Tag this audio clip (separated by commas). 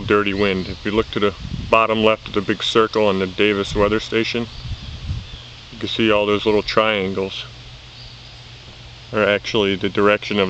Speech